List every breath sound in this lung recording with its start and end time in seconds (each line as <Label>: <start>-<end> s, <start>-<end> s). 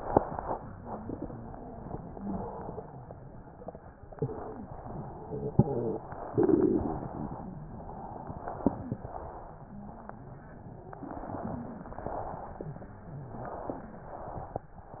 Inhalation: 0.81-2.19 s, 4.06-4.65 s, 6.05-6.72 s, 7.70-8.94 s, 10.86-11.77 s, 13.21-13.97 s
Exhalation: 0.00-0.67 s, 2.22-3.54 s, 4.65-5.93 s, 6.72-7.49 s, 8.94-9.76 s, 11.83-12.74 s, 13.95-14.71 s